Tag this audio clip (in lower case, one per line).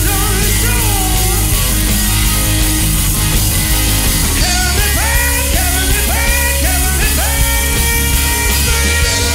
music
rock and roll
roll